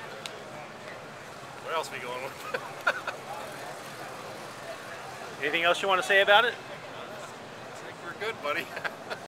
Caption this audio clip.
Two men are having a conversation and wind blows gently